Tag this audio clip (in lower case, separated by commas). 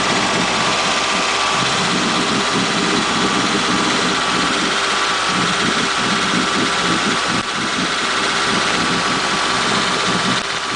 vibration, boat, heavy engine (low frequency), engine, vehicle